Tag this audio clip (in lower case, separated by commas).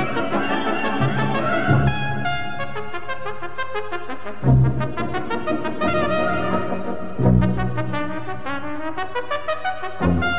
playing trumpet, brass instrument, trumpet